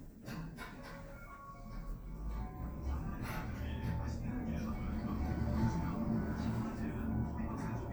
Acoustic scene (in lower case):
elevator